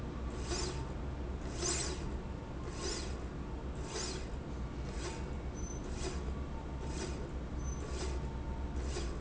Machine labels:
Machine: slide rail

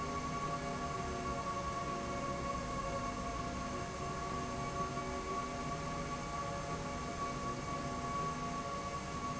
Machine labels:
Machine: slide rail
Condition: normal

